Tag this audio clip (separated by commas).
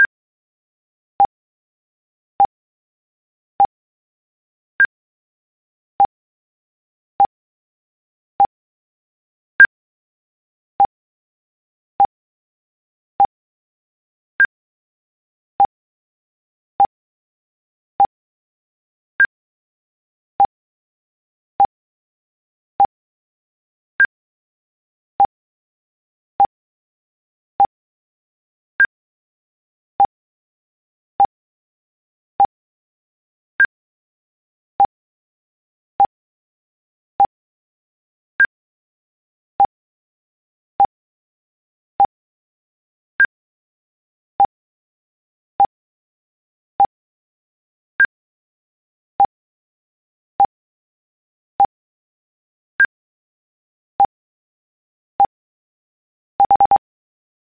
Water, Stream